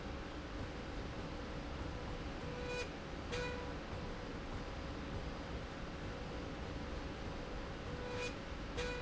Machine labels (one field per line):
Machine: slide rail